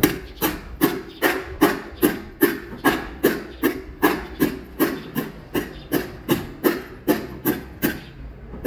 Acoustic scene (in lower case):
residential area